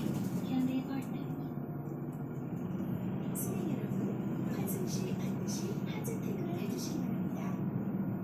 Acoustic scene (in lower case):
bus